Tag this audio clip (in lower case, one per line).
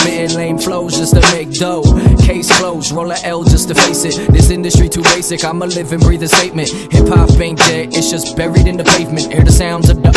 music